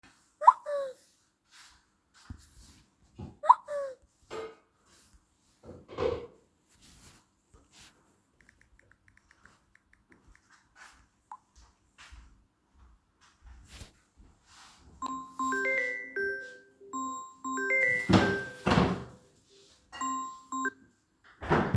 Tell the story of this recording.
I got two whatsapp notifications, responded to it and then received a phonecall which I declined. In the background, my mum was doing the dishes.